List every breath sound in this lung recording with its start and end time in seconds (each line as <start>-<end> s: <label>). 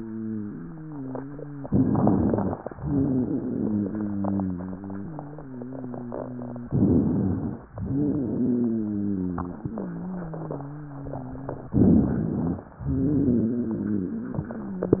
1.62-2.57 s: crackles
1.64-2.54 s: inhalation
2.70-6.66 s: exhalation
2.78-6.65 s: wheeze
6.68-7.61 s: rhonchi
6.70-7.60 s: inhalation
7.72-11.68 s: exhalation
7.82-11.69 s: wheeze
11.74-12.66 s: rhonchi
11.76-12.66 s: inhalation
12.78-15.00 s: exhalation
12.78-15.00 s: wheeze